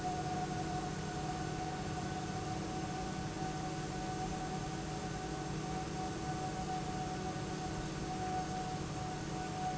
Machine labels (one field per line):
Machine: pump